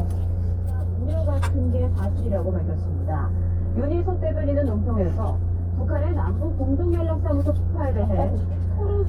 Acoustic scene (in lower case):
car